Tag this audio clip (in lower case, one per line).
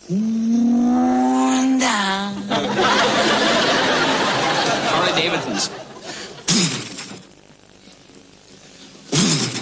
speech